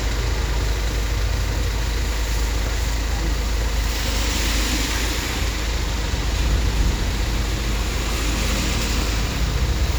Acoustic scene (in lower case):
street